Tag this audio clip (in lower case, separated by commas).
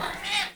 domestic animals, animal, cat, meow